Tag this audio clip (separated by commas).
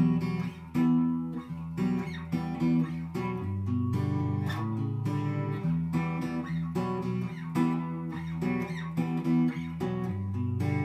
Music